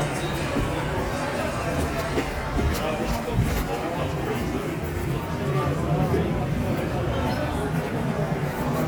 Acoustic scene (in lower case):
subway station